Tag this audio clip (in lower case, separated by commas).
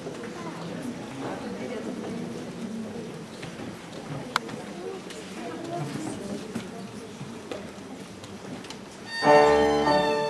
musical instrument, music, speech, fiddle